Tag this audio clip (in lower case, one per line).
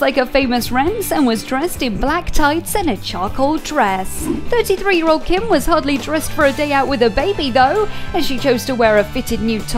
speech
music